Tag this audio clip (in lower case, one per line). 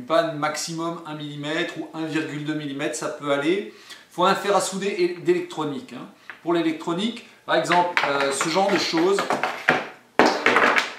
speech